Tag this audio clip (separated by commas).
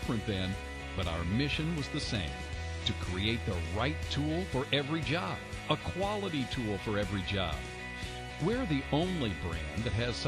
Speech, Music